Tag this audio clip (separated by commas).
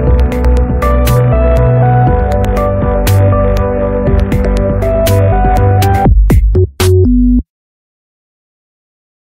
Music